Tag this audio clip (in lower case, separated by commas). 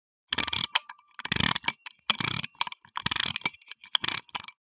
mechanisms, clock